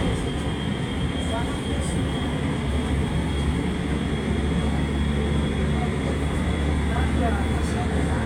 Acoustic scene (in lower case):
subway train